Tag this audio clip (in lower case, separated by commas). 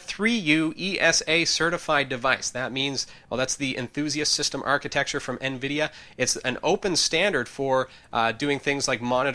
speech